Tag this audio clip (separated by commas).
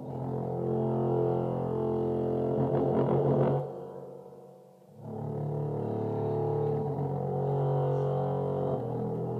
Music